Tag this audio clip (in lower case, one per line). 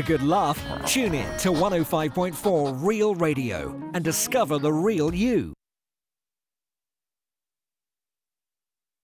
speech
music